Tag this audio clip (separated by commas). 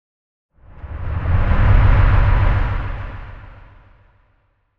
Motor vehicle (road), Vehicle